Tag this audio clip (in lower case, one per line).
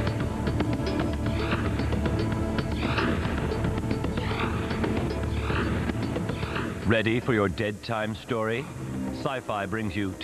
television
speech
music